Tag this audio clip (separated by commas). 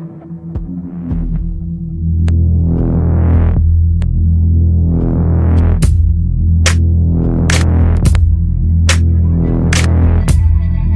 Music